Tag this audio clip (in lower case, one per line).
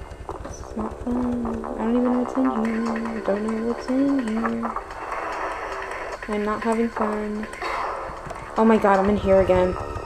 speech